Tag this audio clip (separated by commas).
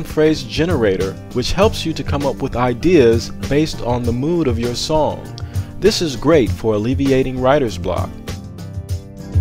Music, Speech